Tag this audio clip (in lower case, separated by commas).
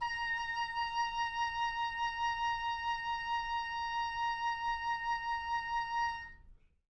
music, musical instrument, woodwind instrument